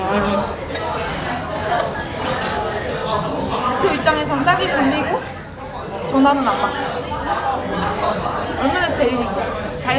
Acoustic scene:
crowded indoor space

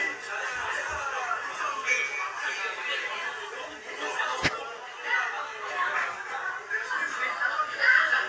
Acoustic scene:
crowded indoor space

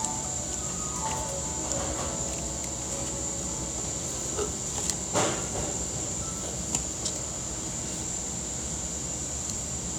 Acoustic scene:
cafe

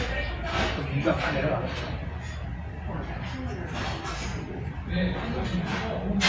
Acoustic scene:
restaurant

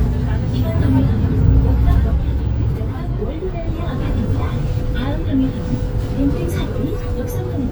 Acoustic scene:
bus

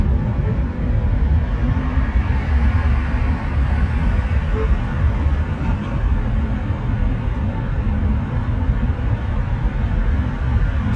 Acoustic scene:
car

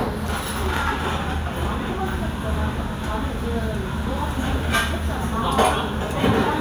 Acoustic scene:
restaurant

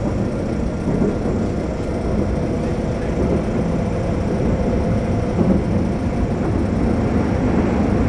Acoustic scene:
subway train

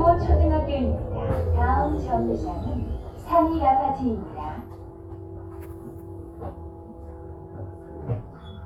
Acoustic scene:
bus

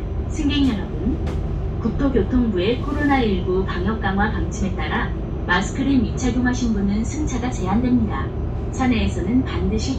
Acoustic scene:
bus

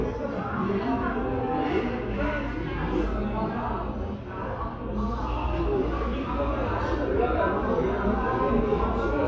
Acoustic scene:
crowded indoor space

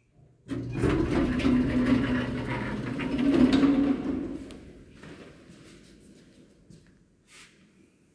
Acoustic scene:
elevator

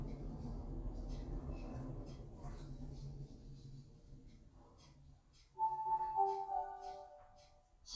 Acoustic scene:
elevator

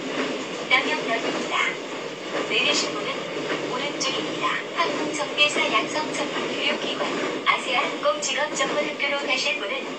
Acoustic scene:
subway train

